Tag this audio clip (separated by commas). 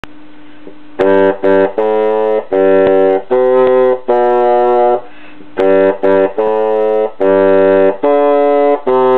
playing bassoon